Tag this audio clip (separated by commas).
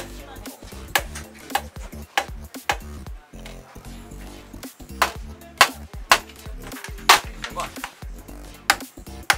hammering nails